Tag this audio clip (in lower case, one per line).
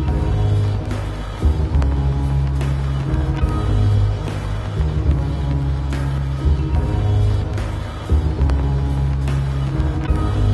music